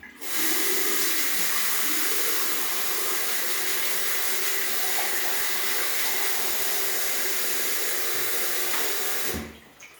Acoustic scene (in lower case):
restroom